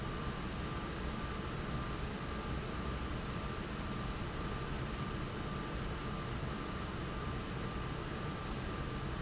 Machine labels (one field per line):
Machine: fan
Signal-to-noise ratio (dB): -6 dB